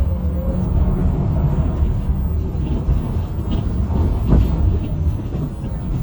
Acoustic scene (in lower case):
bus